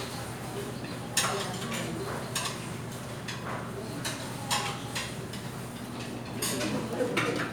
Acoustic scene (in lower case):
restaurant